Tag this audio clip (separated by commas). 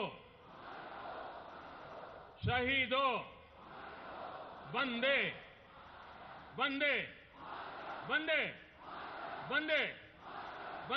Speech, man speaking, Narration